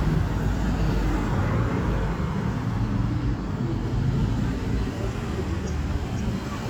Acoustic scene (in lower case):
street